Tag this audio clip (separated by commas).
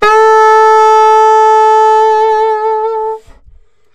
Wind instrument, Musical instrument, Music